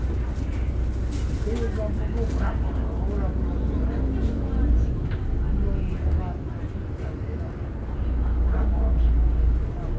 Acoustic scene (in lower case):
bus